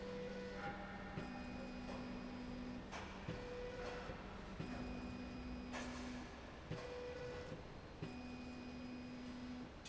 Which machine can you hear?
slide rail